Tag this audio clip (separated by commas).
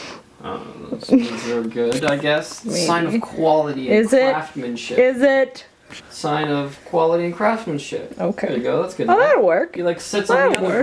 Speech